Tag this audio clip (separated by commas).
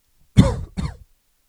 Respiratory sounds, Cough